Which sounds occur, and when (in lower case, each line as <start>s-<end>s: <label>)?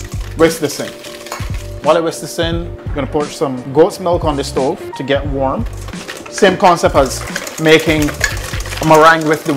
0.0s-1.8s: stir
0.0s-9.5s: music
0.3s-0.8s: male speech
1.8s-2.6s: male speech
2.9s-4.7s: male speech
4.2s-4.9s: scrape
4.9s-5.6s: male speech
5.6s-9.5s: stir
6.2s-7.2s: male speech
7.5s-8.1s: male speech
8.8s-9.5s: male speech